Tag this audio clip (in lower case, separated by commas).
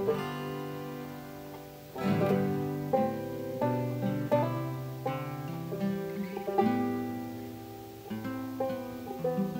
guitar, music, musical instrument, accordion